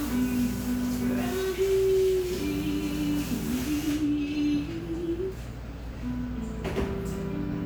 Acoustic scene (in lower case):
cafe